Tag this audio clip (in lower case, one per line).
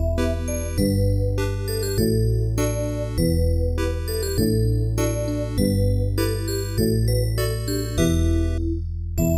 music